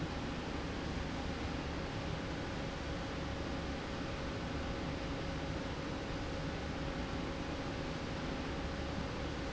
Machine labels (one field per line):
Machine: slide rail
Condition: normal